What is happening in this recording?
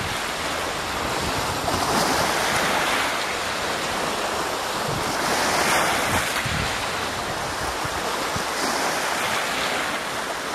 Waves are hitting the shore